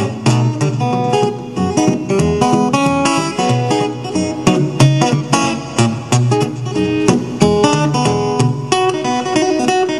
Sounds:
music

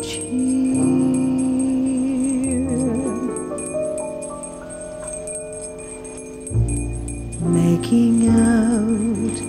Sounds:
music, jingle bell

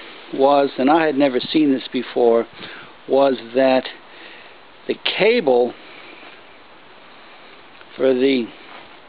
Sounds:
speech

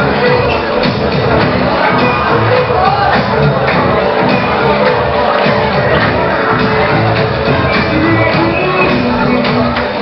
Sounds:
music, speech

